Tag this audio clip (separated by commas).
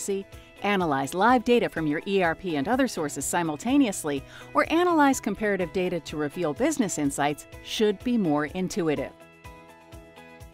Music, Speech